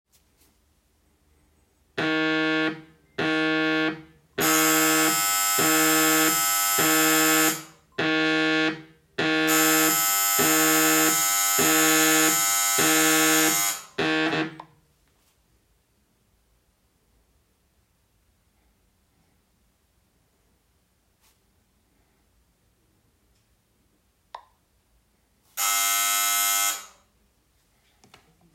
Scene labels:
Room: kitchen; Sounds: phone ringing, bell ringing

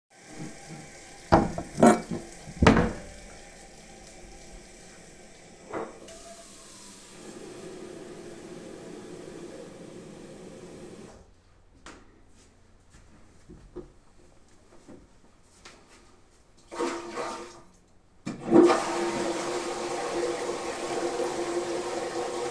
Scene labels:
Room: kitchen; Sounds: running water, wardrobe or drawer, cutlery and dishes, footsteps, toilet flushing

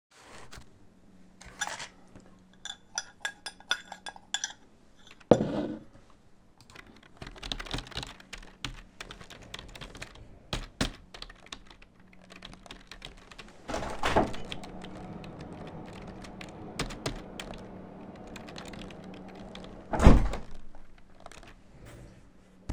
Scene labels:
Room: office; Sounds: keyboard typing, window (more than once)

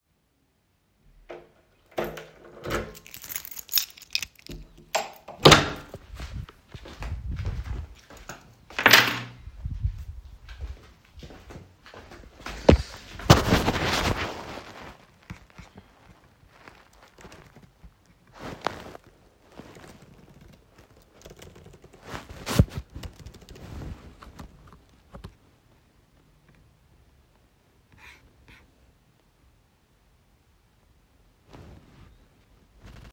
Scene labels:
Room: office; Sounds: keys, door, footsteps, keyboard typing

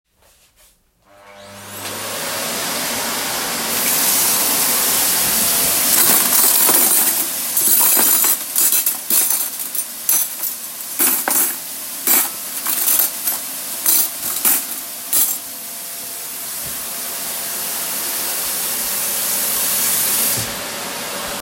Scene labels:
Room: kitchen; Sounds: vacuum cleaner, running water, cutlery and dishes

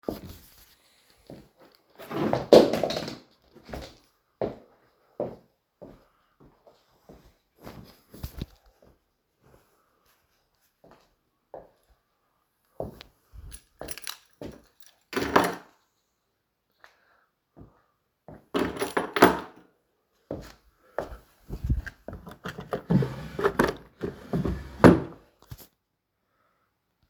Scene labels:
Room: hallway; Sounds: footsteps, wardrobe or drawer (more than once), keys

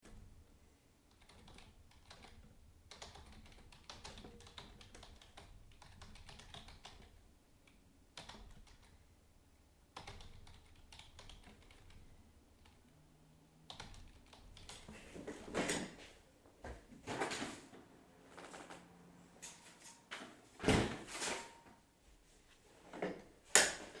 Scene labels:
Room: living room; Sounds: keyboard typing, door (more than once)

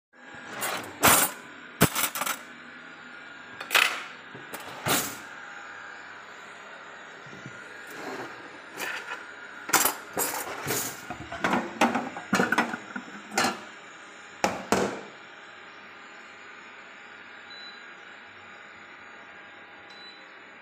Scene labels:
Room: kitchen; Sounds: vacuum cleaner, wardrobe or drawer (more than once), cutlery and dishes

